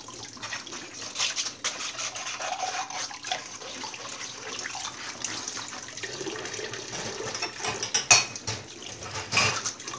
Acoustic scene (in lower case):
kitchen